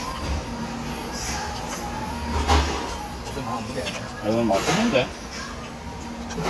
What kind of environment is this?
restaurant